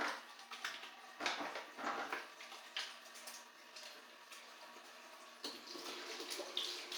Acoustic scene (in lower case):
restroom